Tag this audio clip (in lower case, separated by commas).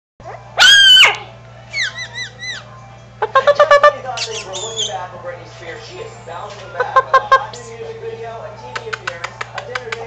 music, speech, animal, pets, dog